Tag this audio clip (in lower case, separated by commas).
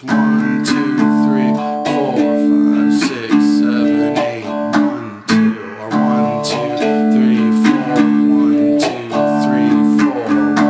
electric guitar, plucked string instrument, musical instrument, music, strum, speech, guitar